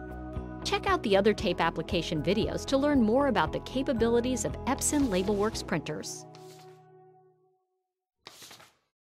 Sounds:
music, speech

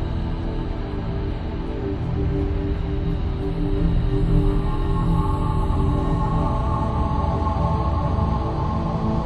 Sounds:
scary music, music

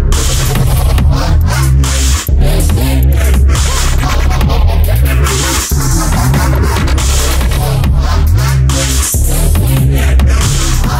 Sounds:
music, dubstep

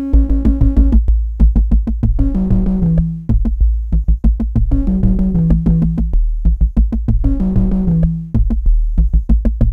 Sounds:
music

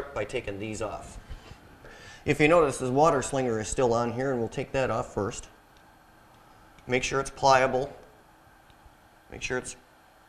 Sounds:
speech

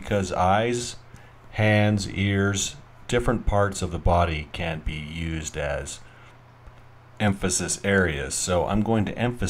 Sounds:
speech

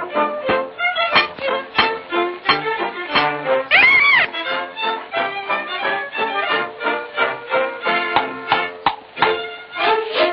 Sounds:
music

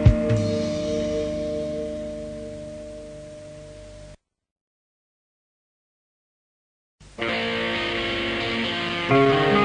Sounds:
punk rock, music, heavy metal

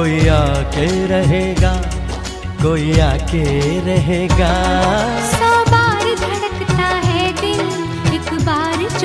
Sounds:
music of bollywood, music, singing

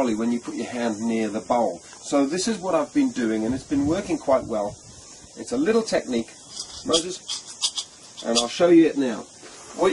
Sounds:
speech

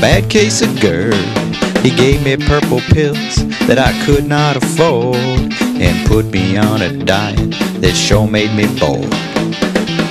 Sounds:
music, speech

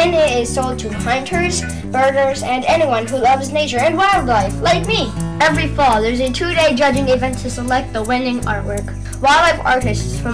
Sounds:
music, speech

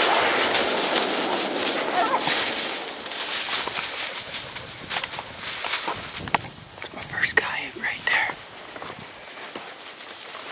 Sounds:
animal

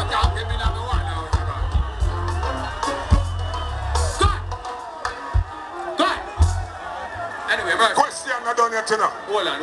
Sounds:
speech, music

